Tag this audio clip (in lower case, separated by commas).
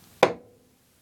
tools, hammer